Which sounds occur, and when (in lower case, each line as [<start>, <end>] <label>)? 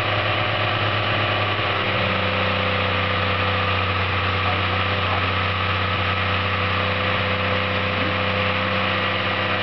[0.00, 9.62] engine
[4.21, 5.18] man speaking